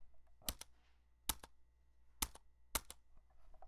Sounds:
typing, domestic sounds, computer keyboard

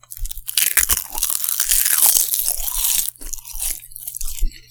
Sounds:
chewing

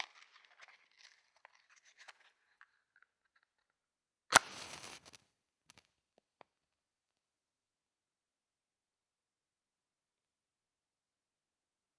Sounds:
fire

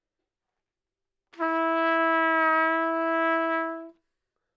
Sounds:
brass instrument, musical instrument, trumpet, music

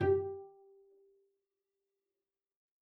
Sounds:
musical instrument, bowed string instrument, music

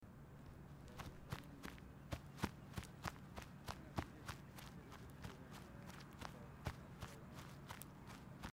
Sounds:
footsteps

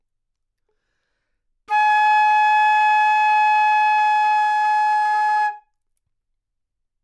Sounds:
woodwind instrument, music, musical instrument

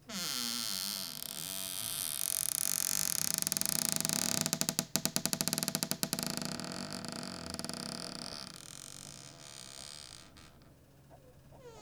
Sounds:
home sounds, cupboard open or close

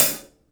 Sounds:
hi-hat, musical instrument, cymbal, percussion, music

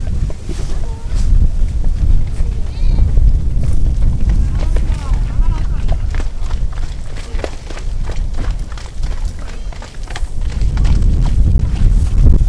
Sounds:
animal, livestock

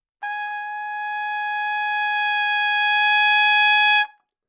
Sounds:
trumpet, brass instrument, music, musical instrument

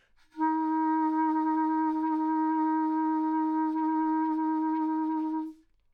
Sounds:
woodwind instrument, musical instrument, music

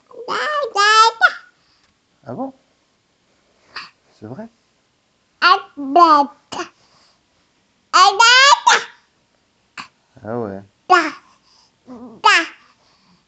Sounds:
speech, human voice

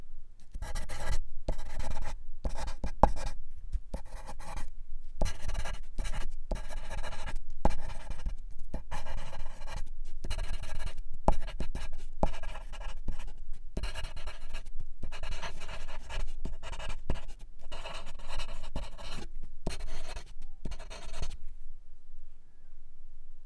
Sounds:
domestic sounds, writing

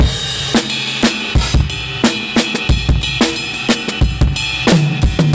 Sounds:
percussion, drum, music, drum kit, musical instrument

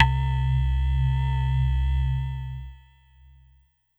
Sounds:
keyboard (musical), music, musical instrument

